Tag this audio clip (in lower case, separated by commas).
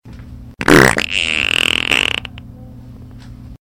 fart